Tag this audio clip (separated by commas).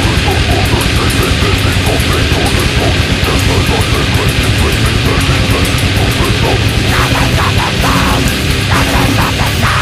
Music